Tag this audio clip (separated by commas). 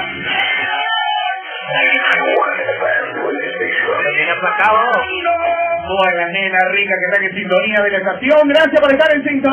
Radio, Music, Speech